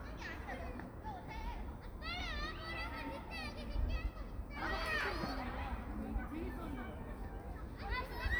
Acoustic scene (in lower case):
park